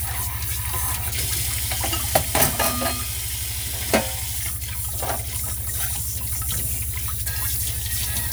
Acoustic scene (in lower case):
kitchen